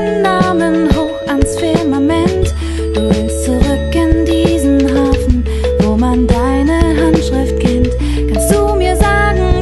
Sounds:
Piano, Singing, Musical instrument, Music

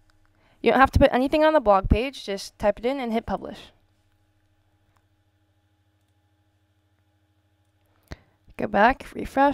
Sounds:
Speech

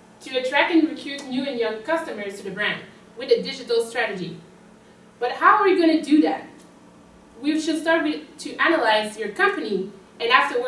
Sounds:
Speech

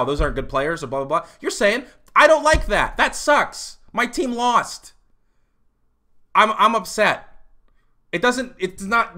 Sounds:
Speech

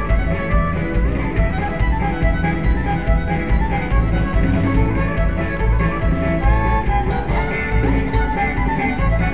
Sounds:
Dance music, Music, Funk

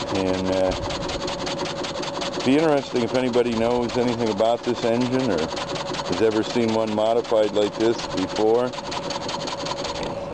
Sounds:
Speech

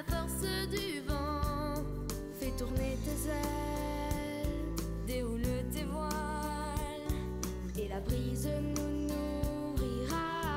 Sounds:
Music

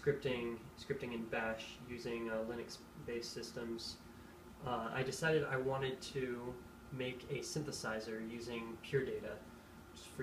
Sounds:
Speech

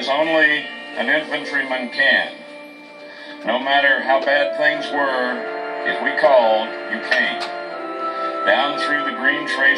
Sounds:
Television, Music, Speech

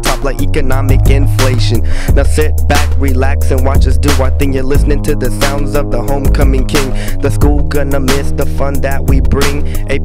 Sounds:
Music, Funk

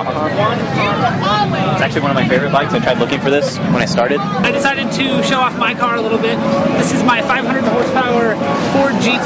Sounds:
Speech

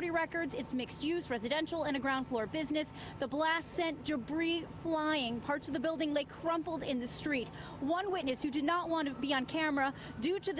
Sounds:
Speech

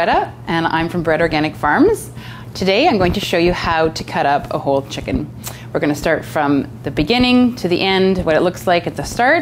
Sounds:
Speech

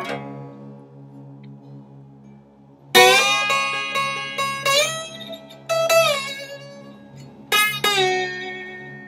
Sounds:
playing steel guitar

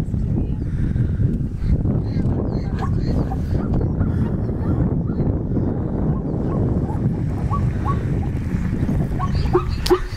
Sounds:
zebra braying

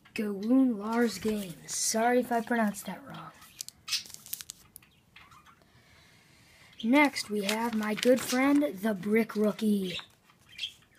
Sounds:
Speech

